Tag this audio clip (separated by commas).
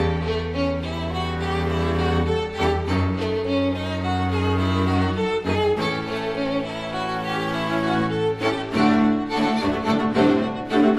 Music, Bowed string instrument